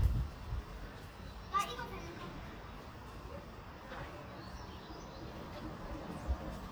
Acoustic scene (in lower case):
residential area